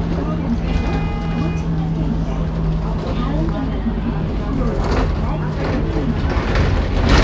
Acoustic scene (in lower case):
bus